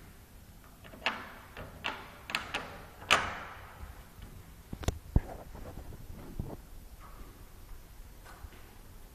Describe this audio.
A door opens and closes